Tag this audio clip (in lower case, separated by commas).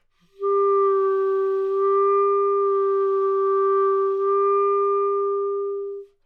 music, woodwind instrument, musical instrument